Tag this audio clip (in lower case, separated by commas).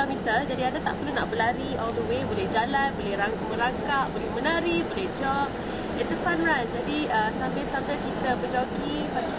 speech